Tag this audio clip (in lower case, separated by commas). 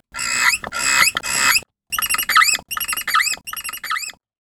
wild animals, bird, animal